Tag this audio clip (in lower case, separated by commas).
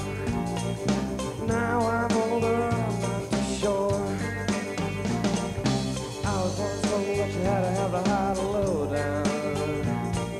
music